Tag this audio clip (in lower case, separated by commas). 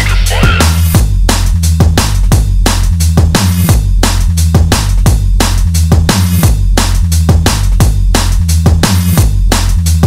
sampler, music